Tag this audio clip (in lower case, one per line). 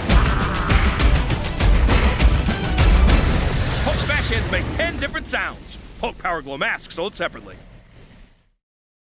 speech
music